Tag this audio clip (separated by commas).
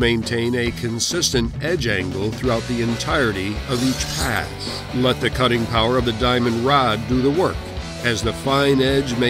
Music, Speech